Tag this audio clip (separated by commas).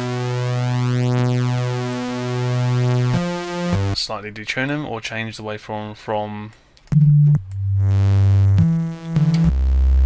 Speech